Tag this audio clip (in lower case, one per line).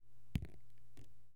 raindrop
rain
liquid
water
drip